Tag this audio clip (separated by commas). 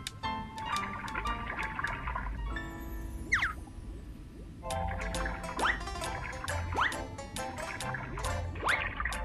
Music